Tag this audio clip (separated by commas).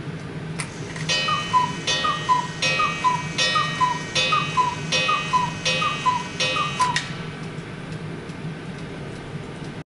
Tick, Tick-tock